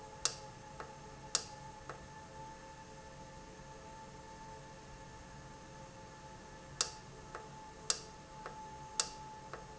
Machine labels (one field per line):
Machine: valve